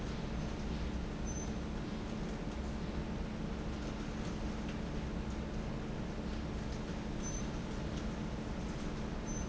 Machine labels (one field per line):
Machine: fan